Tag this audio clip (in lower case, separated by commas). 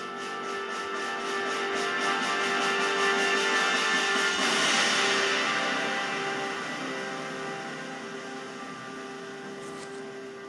music